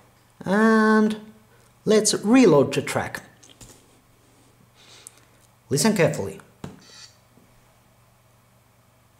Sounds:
Speech

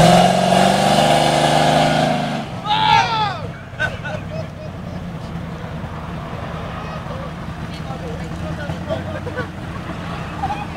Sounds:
Speech

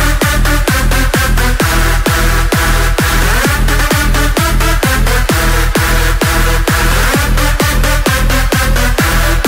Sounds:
Electronic dance music

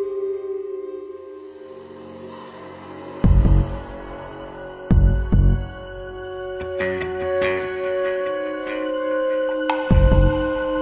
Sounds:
inside a large room or hall, Music

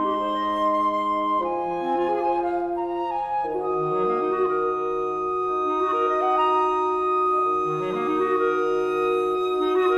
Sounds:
Music

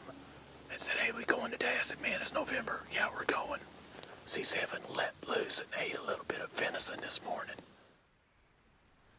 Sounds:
Speech

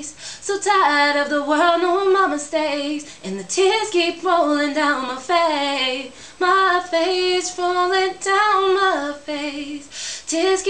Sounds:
Female singing

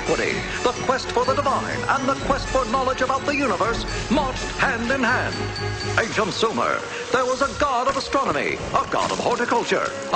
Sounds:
Speech, Music

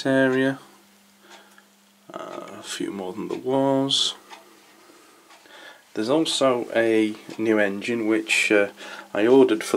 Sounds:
Speech

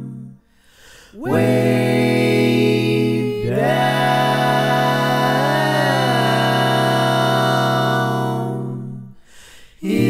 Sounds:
Music

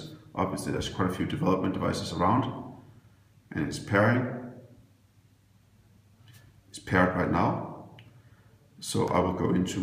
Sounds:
Speech

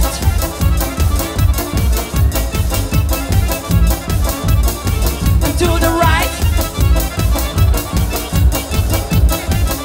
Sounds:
Music

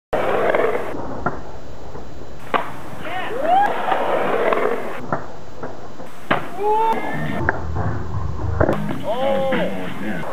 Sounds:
Skateboard, skateboarding, Music, Speech

